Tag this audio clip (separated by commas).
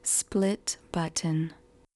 Human voice, woman speaking, Speech